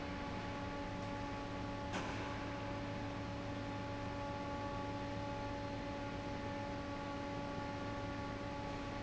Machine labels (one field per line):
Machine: fan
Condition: normal